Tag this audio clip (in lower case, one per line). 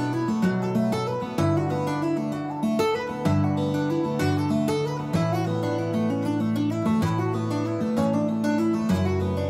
tapping guitar